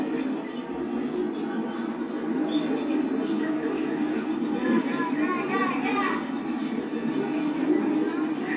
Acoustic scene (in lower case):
park